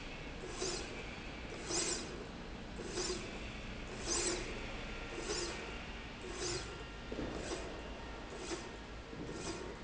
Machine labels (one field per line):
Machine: slide rail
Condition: normal